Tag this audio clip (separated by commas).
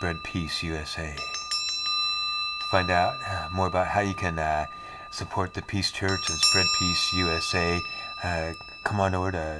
Speech